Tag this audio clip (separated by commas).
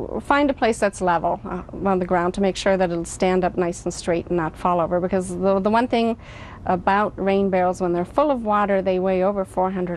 Speech